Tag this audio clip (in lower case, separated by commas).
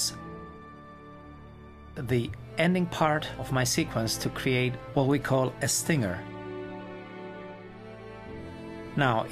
speech, music